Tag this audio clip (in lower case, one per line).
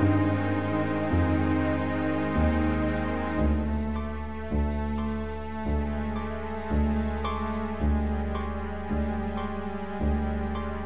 tender music
music